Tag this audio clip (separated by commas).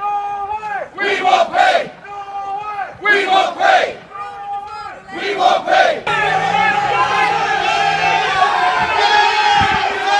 Speech